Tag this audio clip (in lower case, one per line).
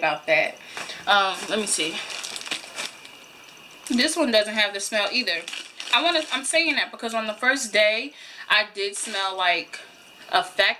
speech